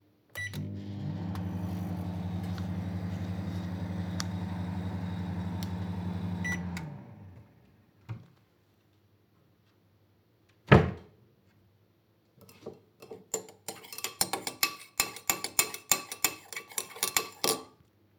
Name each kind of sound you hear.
microwave, wardrobe or drawer, cutlery and dishes